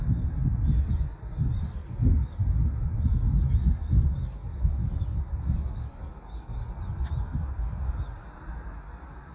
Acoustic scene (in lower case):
park